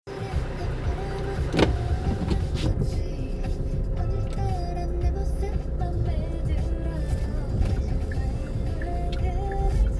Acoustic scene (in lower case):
car